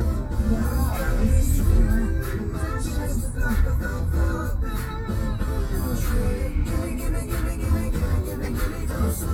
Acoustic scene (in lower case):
car